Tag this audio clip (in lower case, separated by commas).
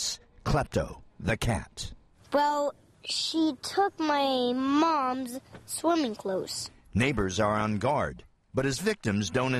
speech